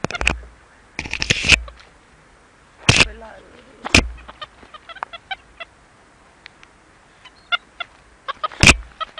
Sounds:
speech

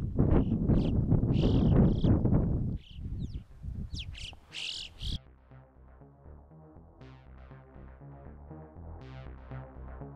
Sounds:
crow cawing

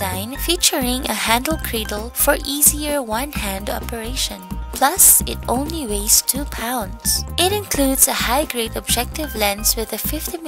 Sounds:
speech
music

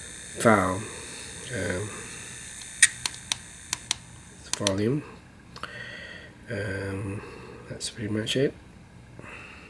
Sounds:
inside a small room
speech

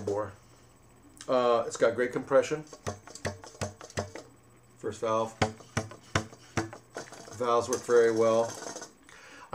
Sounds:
speech

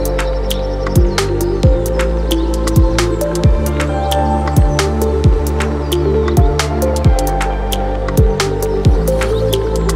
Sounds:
ambient music
music

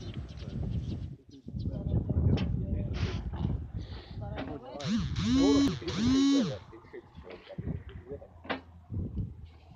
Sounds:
cattle mooing

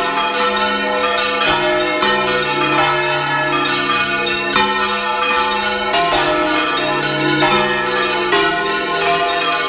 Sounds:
bell
church bell

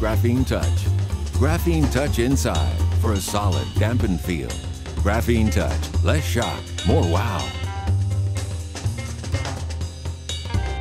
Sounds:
speech
music

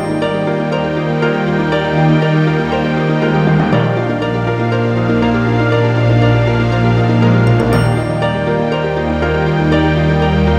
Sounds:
background music

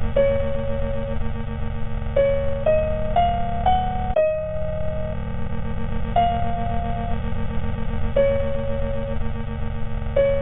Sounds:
music

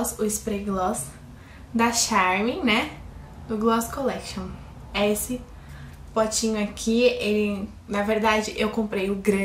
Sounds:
speech

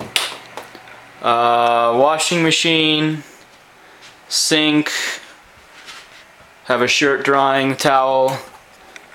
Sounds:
speech

